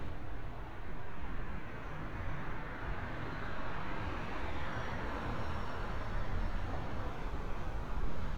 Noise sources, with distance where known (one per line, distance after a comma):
engine of unclear size